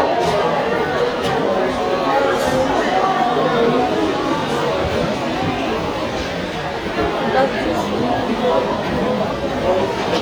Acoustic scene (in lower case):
subway station